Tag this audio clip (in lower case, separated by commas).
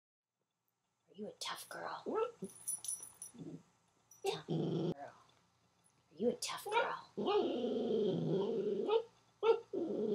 canids, inside a small room, animal, speech, dog, pets